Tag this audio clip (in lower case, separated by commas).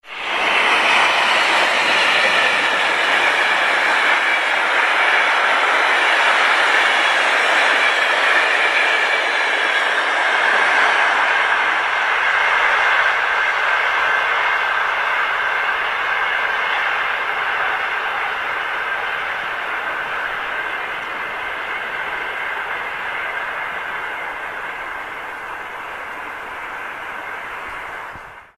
train, rail transport, vehicle